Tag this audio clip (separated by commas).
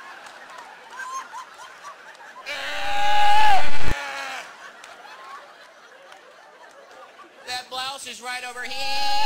Speech, Bleat, Sheep